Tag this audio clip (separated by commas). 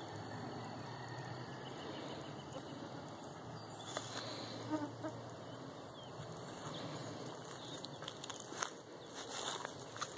outside, rural or natural